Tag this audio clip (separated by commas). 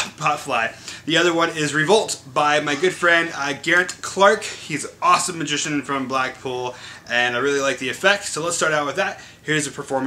Speech